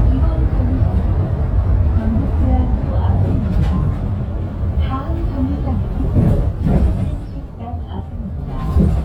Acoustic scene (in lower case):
bus